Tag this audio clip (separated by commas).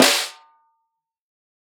Snare drum, Drum, Musical instrument, Percussion, Music